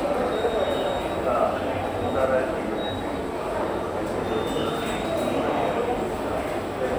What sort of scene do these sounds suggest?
subway station